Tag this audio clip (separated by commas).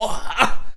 man speaking, Speech, Human voice